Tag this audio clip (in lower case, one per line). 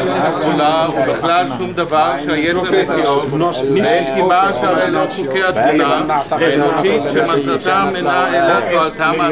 speech